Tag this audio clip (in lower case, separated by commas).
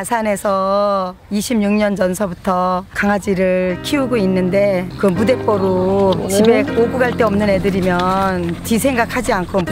speech, music